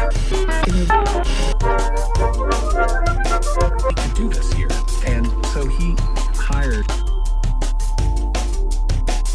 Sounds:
Music, Radio, Speech

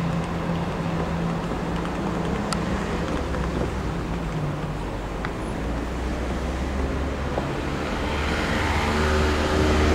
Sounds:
Railroad car, Rail transport, Train

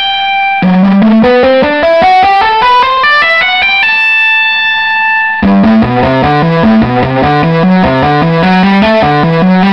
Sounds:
Plucked string instrument, Music, Musical instrument

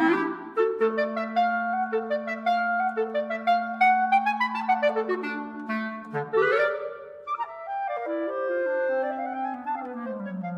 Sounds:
playing clarinet

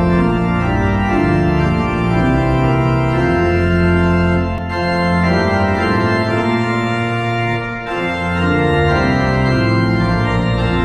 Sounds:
playing electronic organ

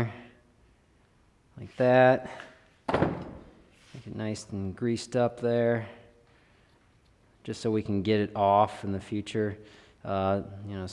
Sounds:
Speech

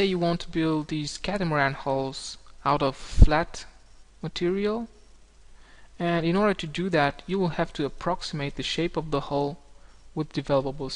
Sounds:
Speech

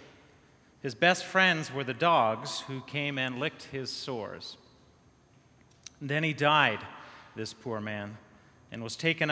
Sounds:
Speech

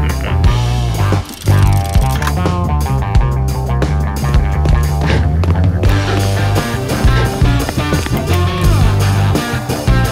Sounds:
Music

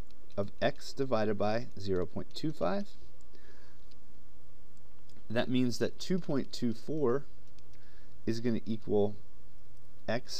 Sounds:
Speech

